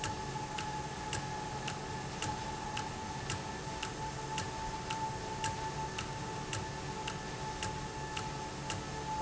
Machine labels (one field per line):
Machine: valve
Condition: normal